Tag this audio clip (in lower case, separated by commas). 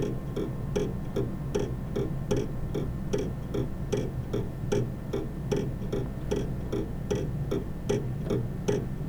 mechanisms, clock